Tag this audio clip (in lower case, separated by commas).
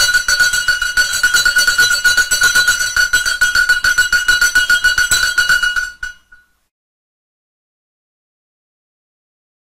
bell